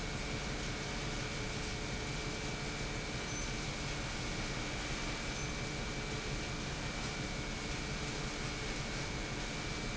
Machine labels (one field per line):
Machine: pump